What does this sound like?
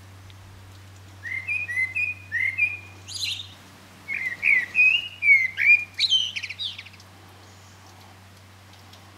A bird is chirping and singing